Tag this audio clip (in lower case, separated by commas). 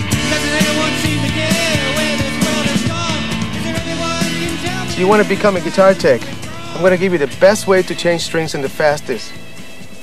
music, speech, guitar, plucked string instrument